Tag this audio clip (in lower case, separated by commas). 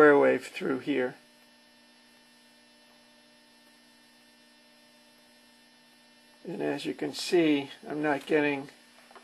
speech